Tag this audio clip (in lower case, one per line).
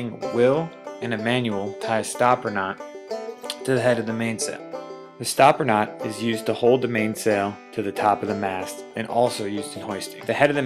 speech
music